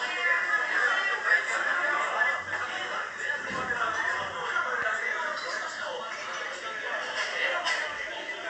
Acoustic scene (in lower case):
crowded indoor space